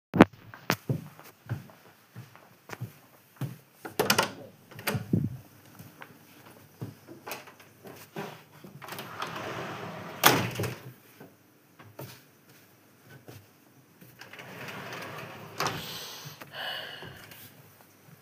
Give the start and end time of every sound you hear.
0.9s-4.0s: footsteps
3.9s-5.3s: door
8.8s-11.1s: wardrobe or drawer
14.2s-17.3s: wardrobe or drawer

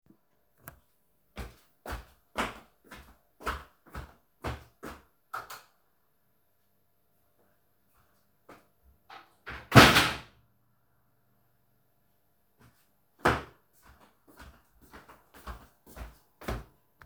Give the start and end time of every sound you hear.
1.3s-5.1s: light switch
1.4s-5.0s: footsteps
5.3s-5.7s: light switch
5.5s-5.7s: footsteps
8.7s-10.5s: wardrobe or drawer
13.1s-17.1s: footsteps

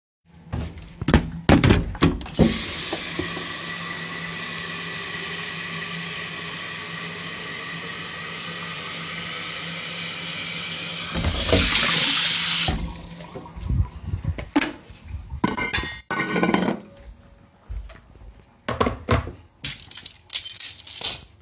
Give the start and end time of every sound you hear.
2.3s-12.9s: running water
15.4s-17.2s: cutlery and dishes
19.5s-21.3s: keys

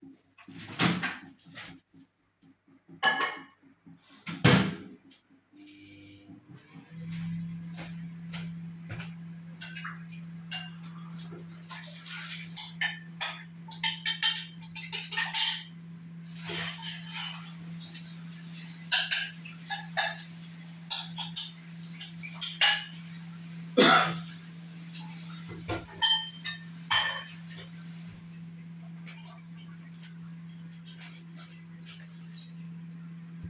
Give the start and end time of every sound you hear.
0.8s-1.8s: microwave
3.3s-3.7s: cutlery and dishes
4.4s-5.1s: microwave
5.8s-33.5s: microwave
7.6s-9.3s: footsteps
9.5s-11.5s: cutlery and dishes
12.5s-18.0s: cutlery and dishes
16.6s-28.8s: running water
18.9s-23.4s: cutlery and dishes
26.3s-27.6s: cutlery and dishes

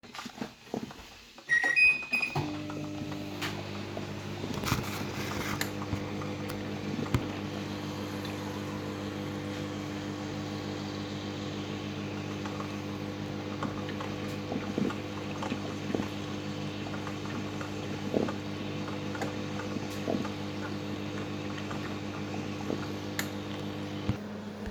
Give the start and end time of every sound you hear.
0.0s-24.7s: coffee machine
1.5s-24.7s: microwave

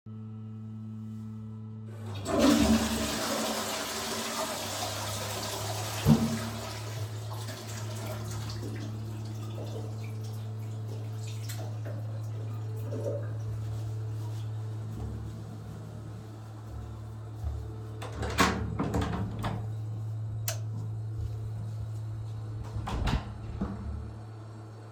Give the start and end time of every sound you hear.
2.1s-13.2s: toilet flushing
18.1s-19.8s: door
20.4s-20.6s: light switch
22.7s-24.1s: door

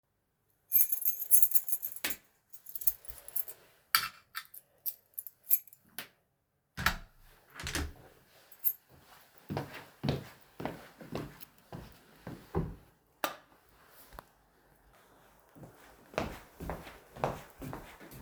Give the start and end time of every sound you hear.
0.7s-2.2s: keys
2.5s-3.7s: keys
4.0s-6.1s: keys
6.7s-8.1s: door
8.5s-8.8s: keys
9.4s-13.0s: footsteps
13.2s-13.4s: light switch
16.1s-18.2s: footsteps

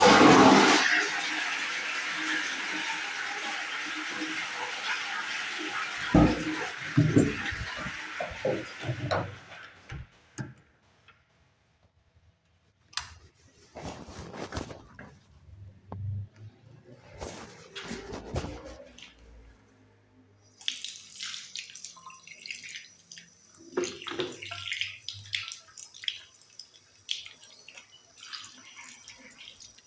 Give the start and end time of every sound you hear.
0.0s-9.4s: toilet flushing
6.2s-7.5s: door
12.8s-13.4s: light switch
20.7s-29.9s: running water

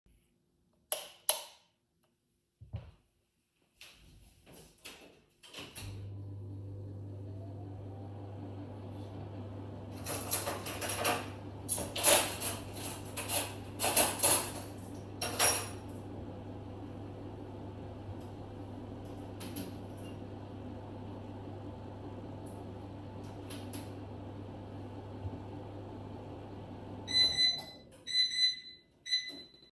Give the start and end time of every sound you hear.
0.8s-1.7s: light switch
5.4s-29.7s: microwave
9.9s-16.0s: cutlery and dishes

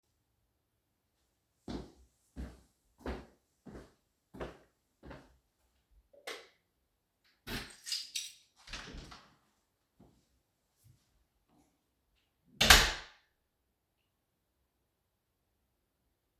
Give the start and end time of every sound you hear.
1.6s-5.4s: footsteps
6.2s-6.7s: light switch
7.4s-8.4s: keys
8.6s-9.3s: door
12.6s-13.2s: door

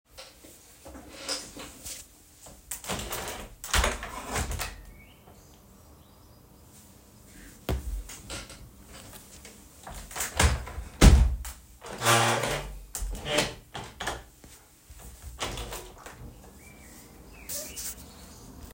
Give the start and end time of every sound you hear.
2.7s-4.8s: window
9.8s-14.3s: window
15.3s-16.5s: window

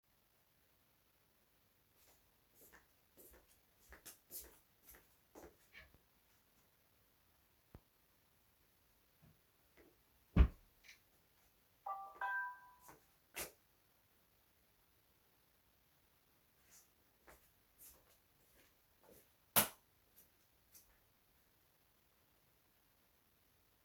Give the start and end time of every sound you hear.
2.0s-5.3s: footsteps
5.5s-6.0s: wardrobe or drawer
10.0s-11.2s: wardrobe or drawer
11.8s-12.4s: phone ringing
12.1s-13.6s: footsteps
16.7s-19.4s: footsteps
19.5s-19.7s: light switch
20.1s-20.8s: footsteps

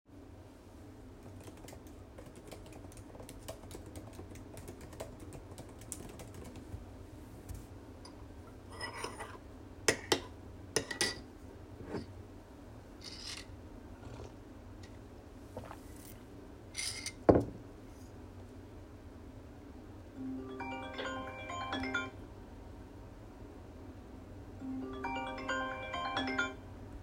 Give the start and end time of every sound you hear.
1.6s-7.3s: keyboard typing
8.6s-11.3s: cutlery and dishes
13.0s-13.5s: cutlery and dishes
16.7s-17.5s: cutlery and dishes
20.1s-22.2s: phone ringing
24.6s-26.6s: phone ringing

